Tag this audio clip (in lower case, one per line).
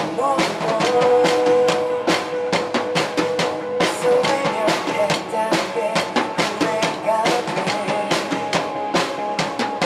drum kit
percussion
rimshot
snare drum
bass drum
drum